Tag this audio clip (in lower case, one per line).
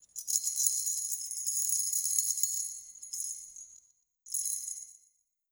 rattle